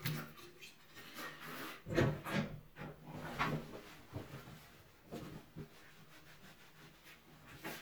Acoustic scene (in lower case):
restroom